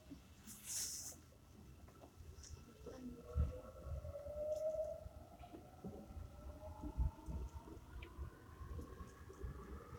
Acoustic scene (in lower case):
subway train